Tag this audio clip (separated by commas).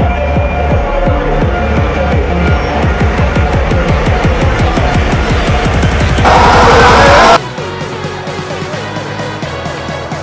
Music, Vehicle